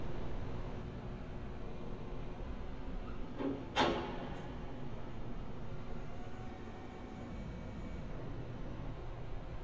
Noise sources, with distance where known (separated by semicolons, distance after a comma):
background noise